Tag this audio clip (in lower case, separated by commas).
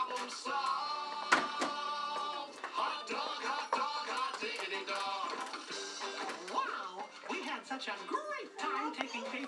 speech, music